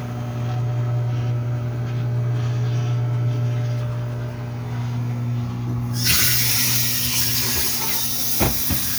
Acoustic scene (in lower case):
kitchen